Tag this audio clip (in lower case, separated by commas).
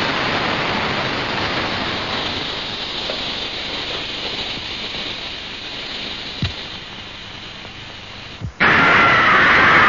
vehicle